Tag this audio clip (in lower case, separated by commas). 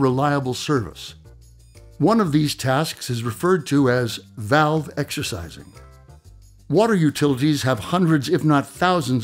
music, speech